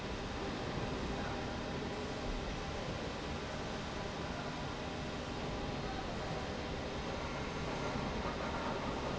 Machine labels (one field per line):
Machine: slide rail